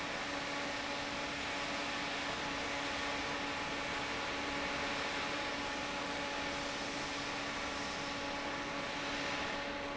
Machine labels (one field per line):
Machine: fan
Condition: normal